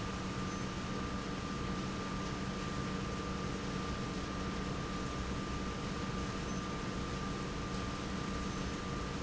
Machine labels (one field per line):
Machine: pump